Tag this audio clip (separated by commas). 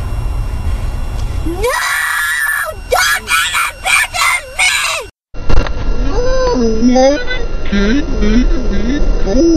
Speech, kid speaking